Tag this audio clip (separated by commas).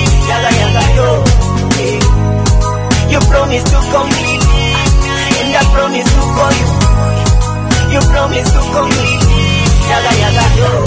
Music